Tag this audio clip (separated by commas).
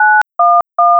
Telephone, Alarm